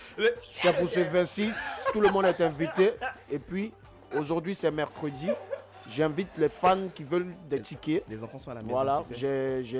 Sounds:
Speech

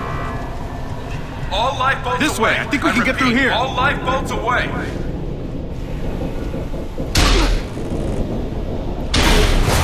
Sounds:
Speech

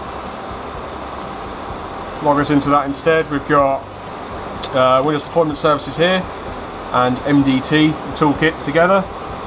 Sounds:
Speech, Music

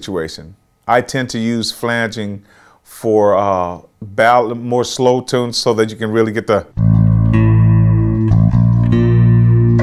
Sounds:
Music, Speech, Musical instrument, Electronic tuner, Bass guitar, Plucked string instrument, Guitar

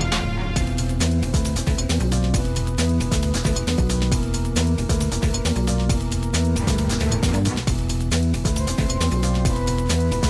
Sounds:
Music, Video game music

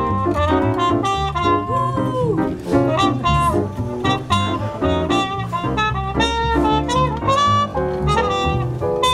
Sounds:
Brass instrument, Trumpet

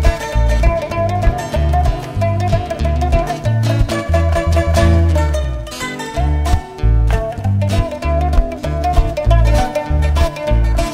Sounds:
Music

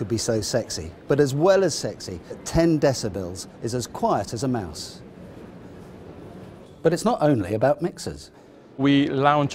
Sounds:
Speech

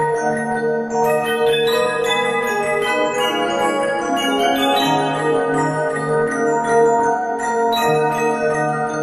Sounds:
Music, Bell

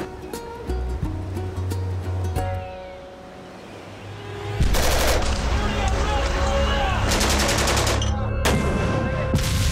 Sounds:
Speech, Music

